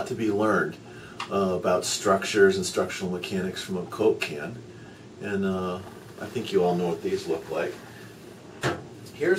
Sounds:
Speech

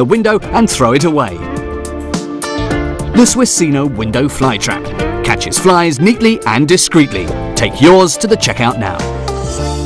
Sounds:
Music, Speech

